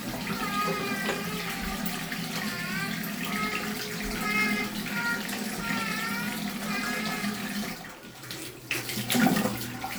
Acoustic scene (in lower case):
restroom